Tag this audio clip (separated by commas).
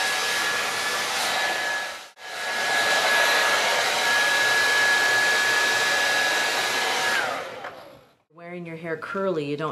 inside a small room, Speech